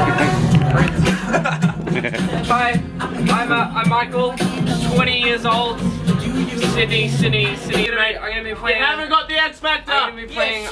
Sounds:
Music, Speech

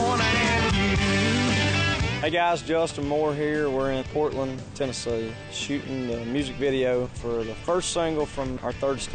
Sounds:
Music, Speech

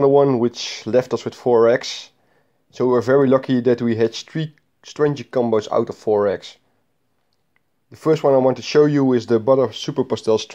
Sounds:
inside a small room, Speech

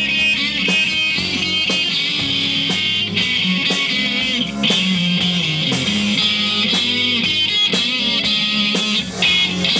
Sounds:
Strum, Music, Musical instrument, Plucked string instrument, Guitar

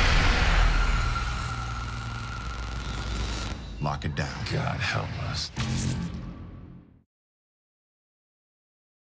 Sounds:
Speech, Music

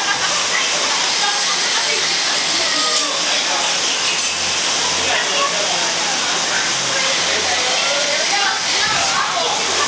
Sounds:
outside, urban or man-made, Speech

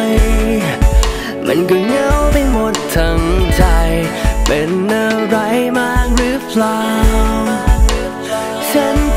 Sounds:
Music

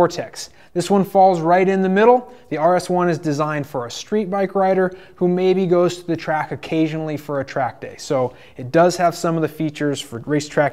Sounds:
Speech

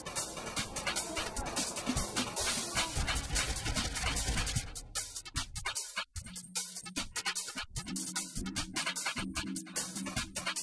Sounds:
Music

